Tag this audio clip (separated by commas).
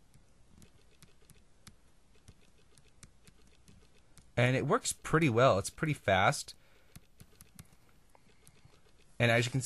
inside a small room, Speech